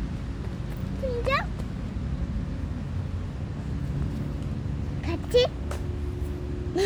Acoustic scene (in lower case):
residential area